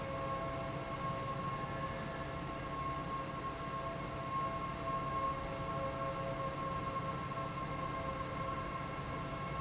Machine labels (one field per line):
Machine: fan